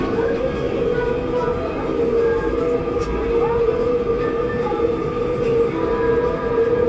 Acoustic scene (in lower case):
subway train